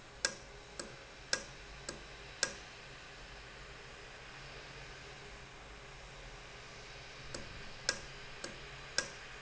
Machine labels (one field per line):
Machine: valve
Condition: normal